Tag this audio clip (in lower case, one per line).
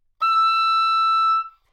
musical instrument
music
wind instrument